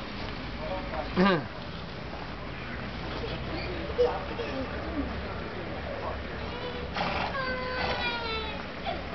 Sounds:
speech, baby cry

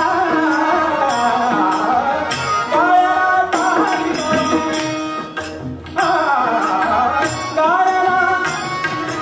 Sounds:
carnatic music, sitar

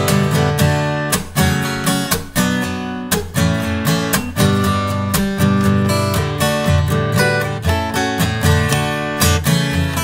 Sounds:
guitar, music, plucked string instrument, acoustic guitar, musical instrument

